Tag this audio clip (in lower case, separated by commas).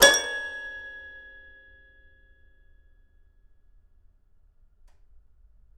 keyboard (musical), music, musical instrument